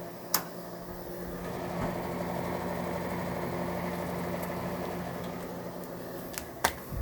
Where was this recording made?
in a kitchen